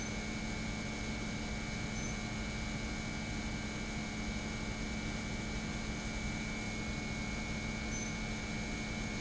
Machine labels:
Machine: pump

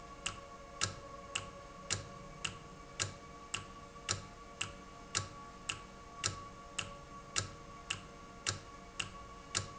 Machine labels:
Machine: valve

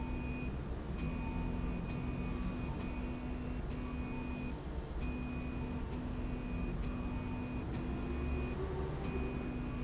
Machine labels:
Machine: slide rail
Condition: normal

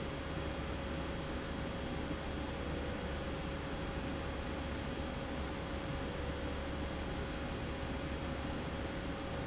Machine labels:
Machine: slide rail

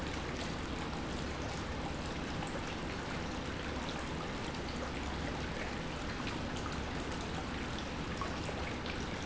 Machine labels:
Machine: pump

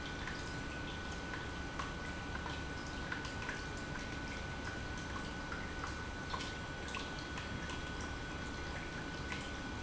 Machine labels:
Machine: pump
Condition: normal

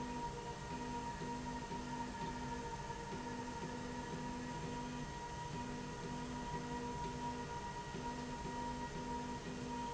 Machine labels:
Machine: slide rail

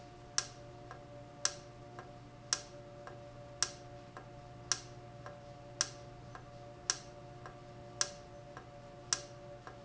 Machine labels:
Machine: valve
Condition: normal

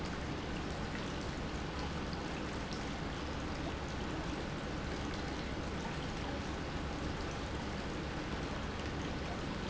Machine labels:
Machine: pump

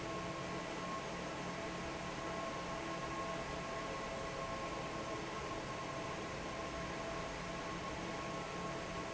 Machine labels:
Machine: fan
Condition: normal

